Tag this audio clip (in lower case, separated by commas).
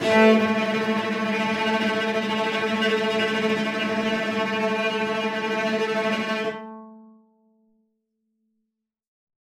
music, bowed string instrument, musical instrument